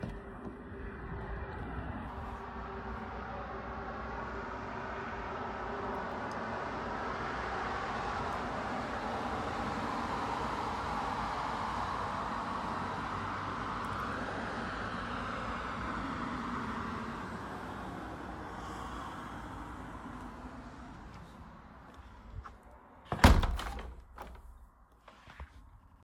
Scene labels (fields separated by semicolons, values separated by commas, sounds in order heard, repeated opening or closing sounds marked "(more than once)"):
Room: living room; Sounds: window